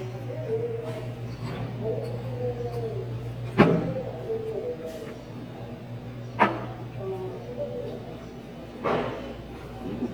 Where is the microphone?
in a restaurant